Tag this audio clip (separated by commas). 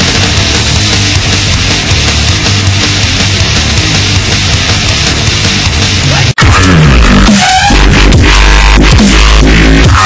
Dubstep, Electronic music, Music